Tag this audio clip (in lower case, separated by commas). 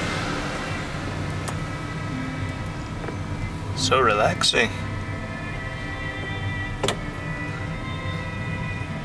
music, car, vehicle, speech